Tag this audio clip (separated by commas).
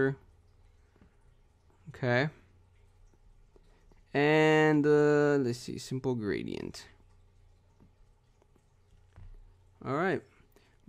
inside a small room, Speech